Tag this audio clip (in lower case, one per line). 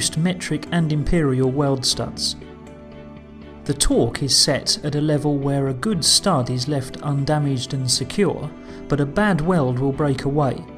music
speech